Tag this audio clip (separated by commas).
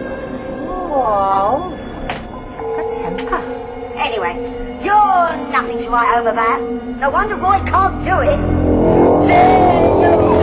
Music, Speech